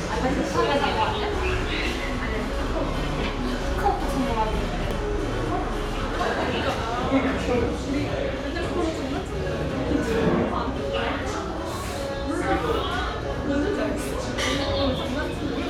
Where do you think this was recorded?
in a cafe